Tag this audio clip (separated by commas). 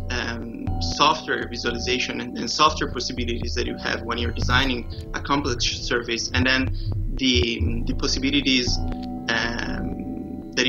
Music, Speech